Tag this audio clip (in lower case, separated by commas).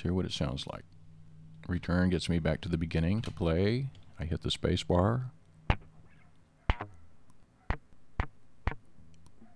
music, speech